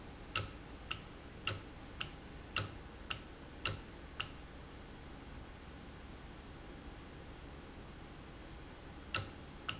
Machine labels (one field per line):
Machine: valve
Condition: normal